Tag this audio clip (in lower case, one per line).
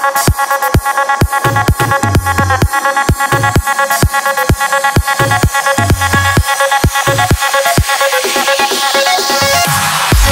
music
electronic dance music